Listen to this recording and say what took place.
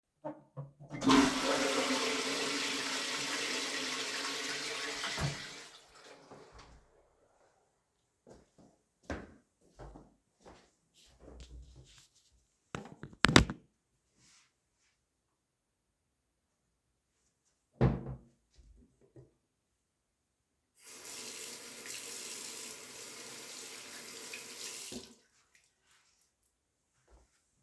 I flushed the toilet, walked into the bathroom. Opened the cabinet used the soap dispenser, turned on the water and started washing my hands.